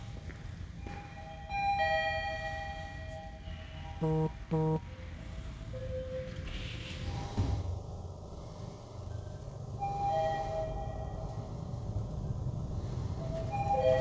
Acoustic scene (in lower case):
elevator